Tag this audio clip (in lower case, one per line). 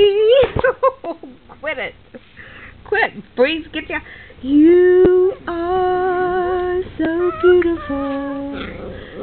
speech
female singing